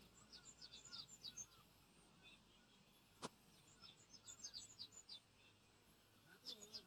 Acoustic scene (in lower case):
park